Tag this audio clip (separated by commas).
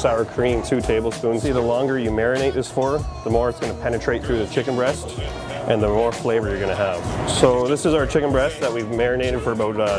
Music, Speech